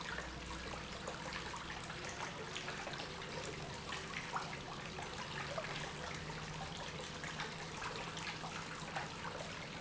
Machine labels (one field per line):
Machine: pump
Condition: normal